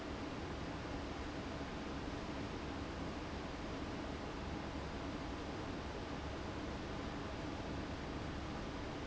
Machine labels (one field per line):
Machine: fan